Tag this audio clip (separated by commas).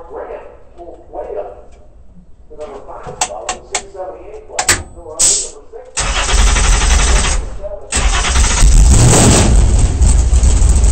Car, Vehicle, Speech